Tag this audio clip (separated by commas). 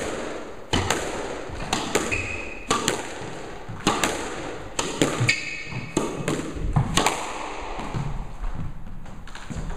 playing squash